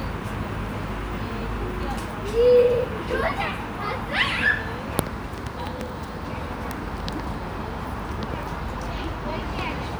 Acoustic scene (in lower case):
park